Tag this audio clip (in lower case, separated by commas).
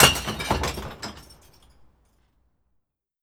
glass, shatter, crushing